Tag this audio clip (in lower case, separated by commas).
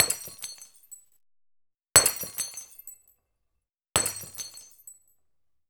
shatter, glass